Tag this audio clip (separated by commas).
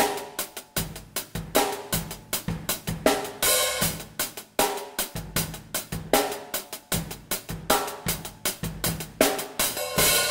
Hi-hat, Cymbal, playing cymbal